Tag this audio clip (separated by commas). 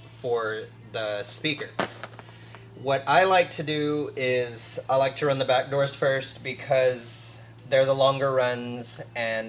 Speech